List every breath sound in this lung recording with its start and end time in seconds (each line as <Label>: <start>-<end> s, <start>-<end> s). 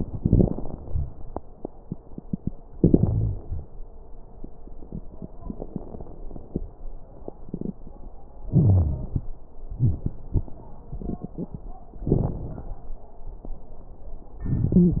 Inhalation: 0.07-1.05 s, 8.51-9.23 s
Exhalation: 2.77-3.64 s, 12.07-12.80 s
Wheeze: 2.99-3.42 s, 8.51-9.23 s, 14.72-15.00 s
Crackles: 0.07-1.05 s, 12.07-12.80 s